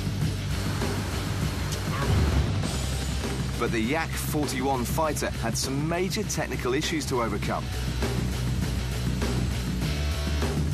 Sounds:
Music, Speech

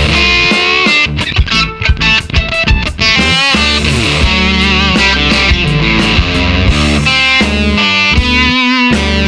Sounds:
Guitar, Musical instrument, Music

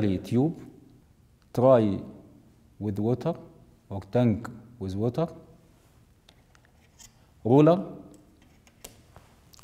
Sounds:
Speech

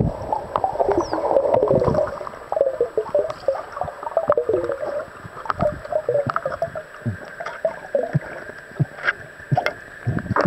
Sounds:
underwater bubbling

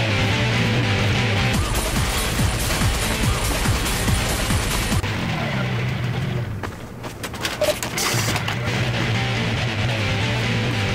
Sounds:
Sound effect, Music

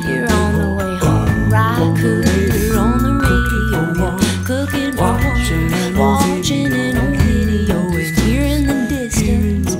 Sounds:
Happy music, Music

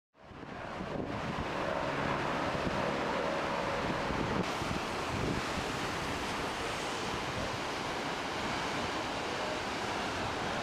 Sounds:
ocean burbling, surf, Ocean

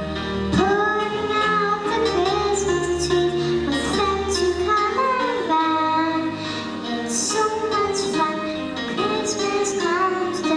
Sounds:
Singing

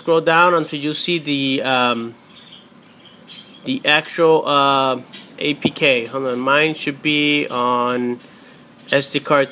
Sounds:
bird song, Bird, tweet

